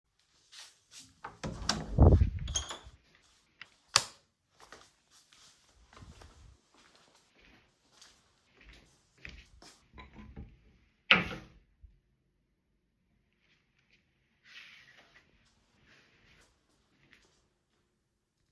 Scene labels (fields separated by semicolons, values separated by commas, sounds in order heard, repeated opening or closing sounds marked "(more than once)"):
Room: bedroom, hallway; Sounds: door, light switch, footsteps, wardrobe or drawer